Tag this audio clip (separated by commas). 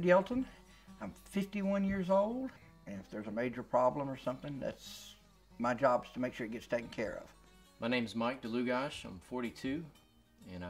Speech